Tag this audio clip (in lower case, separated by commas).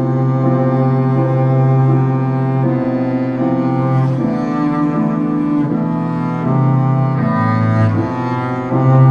cello, bowed string instrument, musical instrument, classical music, music